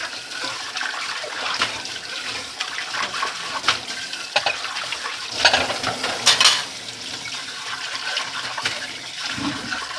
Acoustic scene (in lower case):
kitchen